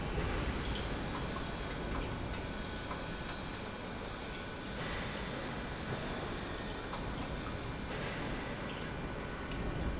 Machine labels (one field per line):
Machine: pump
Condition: normal